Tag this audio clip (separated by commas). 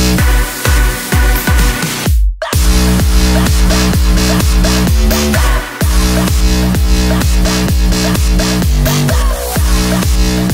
House music, Electronic dance music, Electronic music, Music